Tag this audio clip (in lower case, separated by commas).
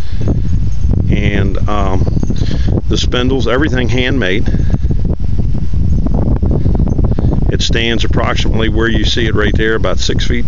speech